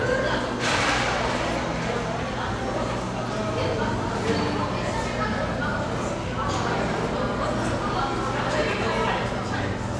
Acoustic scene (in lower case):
cafe